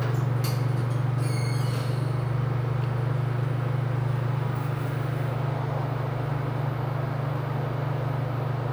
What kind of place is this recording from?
elevator